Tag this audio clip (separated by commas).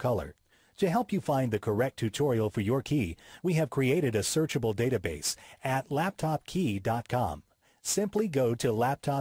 Speech